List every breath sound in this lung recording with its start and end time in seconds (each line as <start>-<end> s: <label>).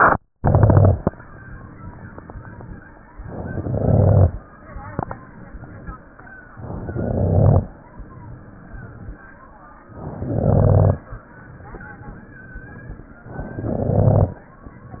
0.34-1.03 s: inhalation
0.34-1.03 s: crackles
3.25-4.35 s: inhalation
3.25-4.35 s: crackles
6.57-7.67 s: inhalation
6.57-7.67 s: crackles
9.92-11.03 s: inhalation
9.92-11.03 s: crackles
13.30-14.40 s: inhalation
13.30-14.40 s: crackles